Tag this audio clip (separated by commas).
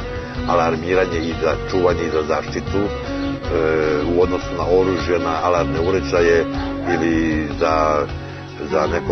Dog, Music, Animal, Domestic animals, Speech